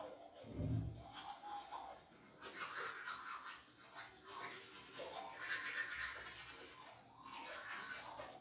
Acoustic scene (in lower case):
restroom